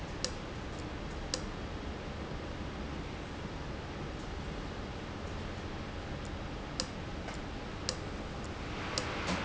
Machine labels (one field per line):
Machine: valve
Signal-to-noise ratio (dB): -6 dB